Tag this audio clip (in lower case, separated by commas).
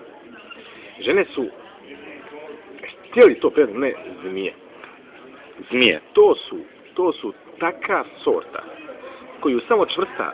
outside, rural or natural, speech